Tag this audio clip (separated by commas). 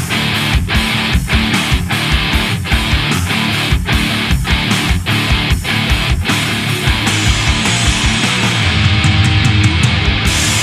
Plucked string instrument, Strum, Music, Musical instrument, Guitar